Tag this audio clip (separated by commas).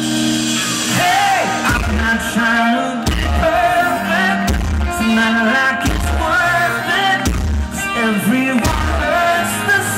Music, Singing, inside a large room or hall